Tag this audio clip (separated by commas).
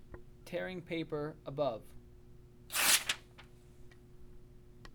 Tearing